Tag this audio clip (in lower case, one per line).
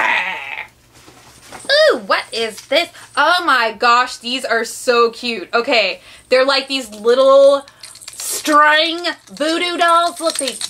inside a small room
speech